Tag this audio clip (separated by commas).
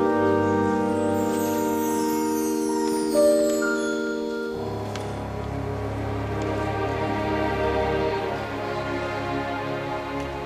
Orchestra, Music